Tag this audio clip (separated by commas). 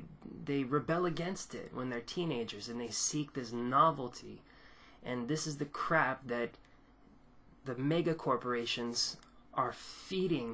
Speech